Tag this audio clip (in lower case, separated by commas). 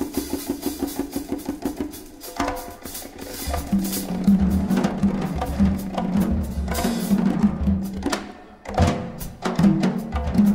musical instrument, inside a public space, music, percussion, drum